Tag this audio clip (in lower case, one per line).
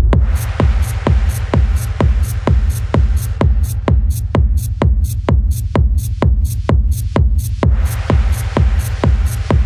techno
electronic music
music